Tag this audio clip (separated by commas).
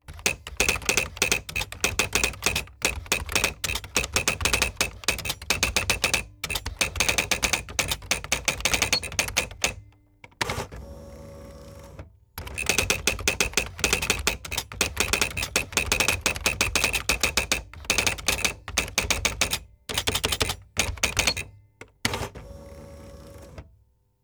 home sounds, Typing, Typewriter